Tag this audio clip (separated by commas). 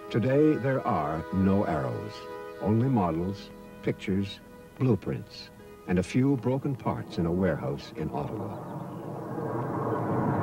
Speech, Music